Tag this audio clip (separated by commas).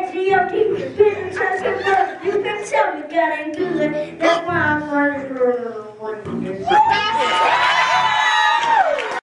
Child singing